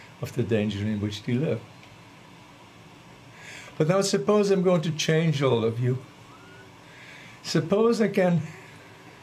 An older man is giving a speech